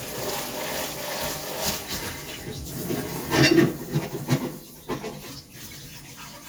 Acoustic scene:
kitchen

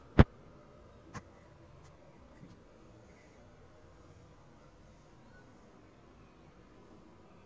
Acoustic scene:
park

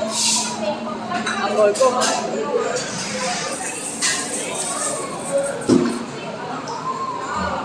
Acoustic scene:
cafe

